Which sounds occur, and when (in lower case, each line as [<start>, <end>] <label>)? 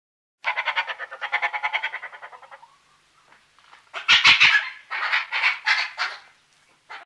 [0.43, 3.01] animal
[0.43, 7.05] background noise
[3.15, 3.47] animal
[3.57, 4.78] animal
[4.90, 5.26] animal
[5.35, 5.57] animal
[5.69, 5.87] animal
[6.00, 6.36] animal
[6.62, 7.05] animal